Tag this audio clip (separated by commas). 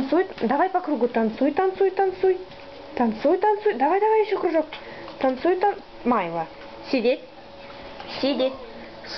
Speech